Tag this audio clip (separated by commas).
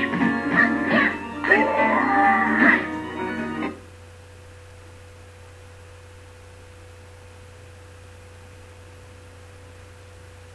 Keyboard (musical)